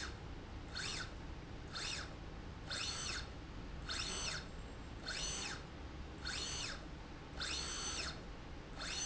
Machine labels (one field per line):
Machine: slide rail